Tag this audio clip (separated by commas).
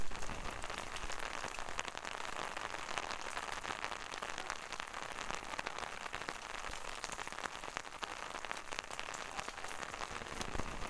Rain, Water